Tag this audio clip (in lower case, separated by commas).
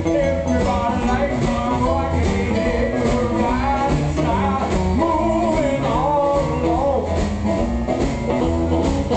wind instrument, harmonica